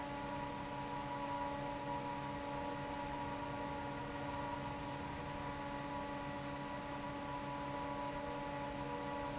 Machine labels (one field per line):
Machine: fan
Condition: normal